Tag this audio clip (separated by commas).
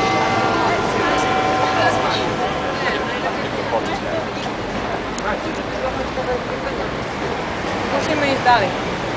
Speech